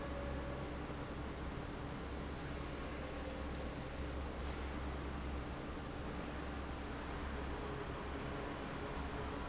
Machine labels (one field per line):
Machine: fan